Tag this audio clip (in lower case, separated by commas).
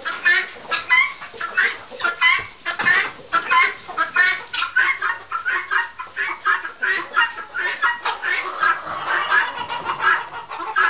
bird, chicken